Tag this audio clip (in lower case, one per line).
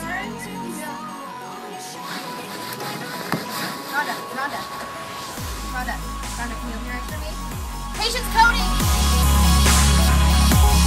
music
speech